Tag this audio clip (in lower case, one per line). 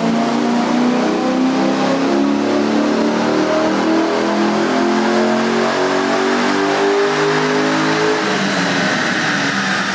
vehicle
car